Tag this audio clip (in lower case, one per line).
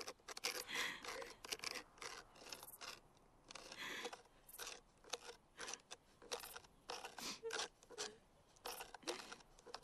outside, rural or natural
scrape